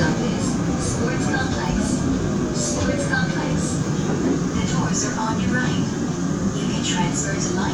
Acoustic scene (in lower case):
subway train